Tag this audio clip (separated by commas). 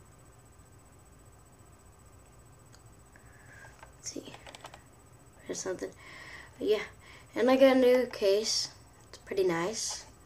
Speech